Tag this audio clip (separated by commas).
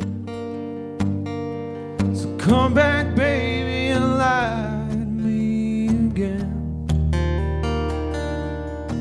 Music